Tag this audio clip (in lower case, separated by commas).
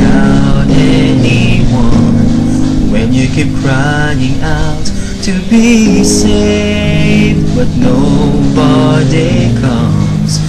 music, male singing